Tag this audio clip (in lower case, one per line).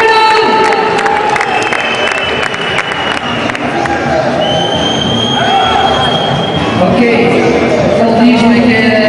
speech